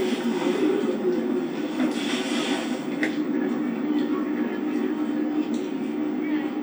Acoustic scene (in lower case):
park